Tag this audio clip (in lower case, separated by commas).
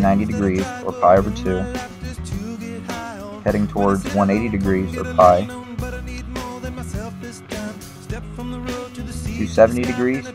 speech, music